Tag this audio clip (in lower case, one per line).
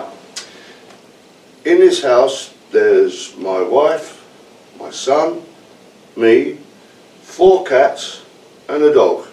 speech